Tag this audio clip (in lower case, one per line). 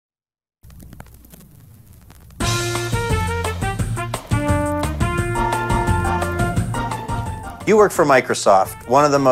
speech
music